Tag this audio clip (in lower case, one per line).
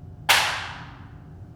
hands
clapping